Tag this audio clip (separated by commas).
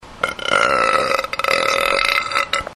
eructation